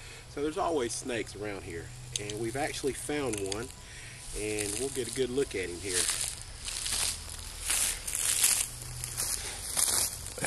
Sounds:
outside, rural or natural, Speech

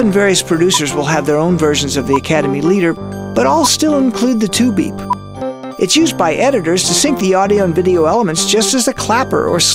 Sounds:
Speech, Music

